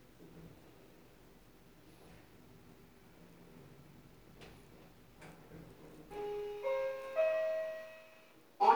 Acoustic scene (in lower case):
elevator